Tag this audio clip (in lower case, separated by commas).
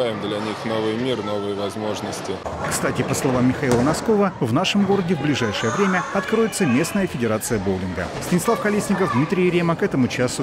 bowling impact